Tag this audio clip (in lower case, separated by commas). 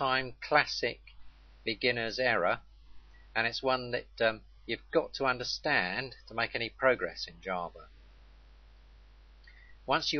speech